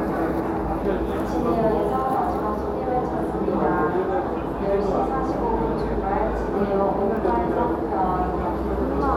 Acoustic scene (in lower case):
crowded indoor space